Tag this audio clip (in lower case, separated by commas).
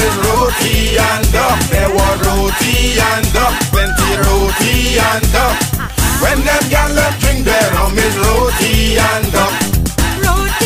music